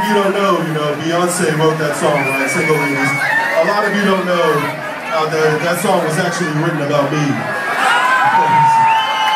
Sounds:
speech
crowd

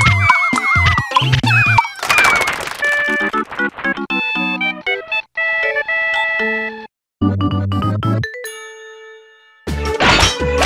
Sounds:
music

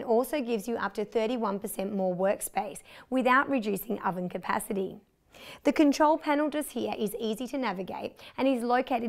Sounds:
speech

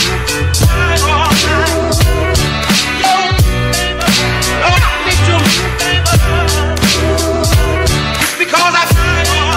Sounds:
music

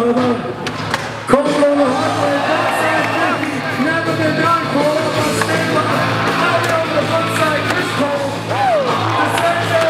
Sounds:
music
speech

